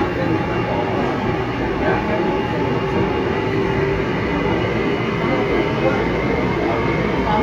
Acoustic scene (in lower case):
subway train